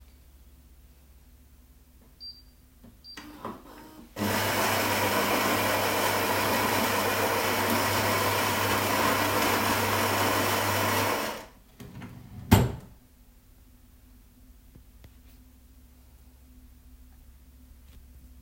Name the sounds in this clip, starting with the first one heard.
coffee machine, wardrobe or drawer